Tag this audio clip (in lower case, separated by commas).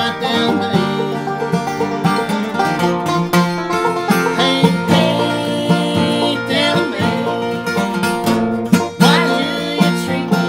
banjo, country, bluegrass, playing banjo, guitar, music